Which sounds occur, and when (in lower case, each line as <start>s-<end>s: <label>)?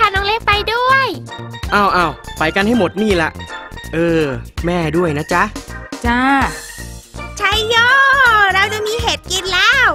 0.0s-1.2s: child speech
0.0s-9.9s: conversation
0.0s-9.9s: music
1.6s-2.1s: male speech
2.3s-3.3s: male speech
3.9s-4.4s: male speech
4.6s-5.5s: male speech
6.0s-6.7s: female speech
7.4s-9.9s: child speech
8.2s-8.3s: tick
8.8s-8.9s: tick